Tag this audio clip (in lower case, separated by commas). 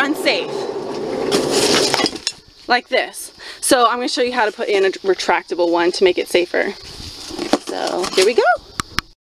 outside, rural or natural, speech